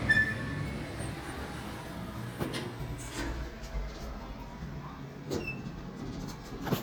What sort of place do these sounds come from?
elevator